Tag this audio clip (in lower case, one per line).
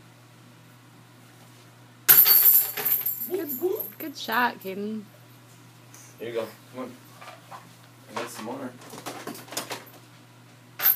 speech